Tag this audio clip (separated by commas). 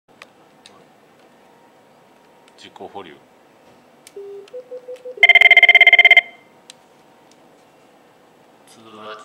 Telephone, Speech